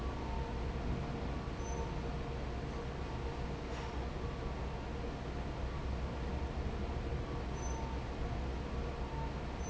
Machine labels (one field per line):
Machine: fan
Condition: normal